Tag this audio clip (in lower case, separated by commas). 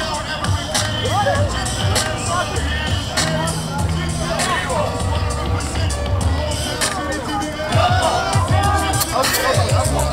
music, speech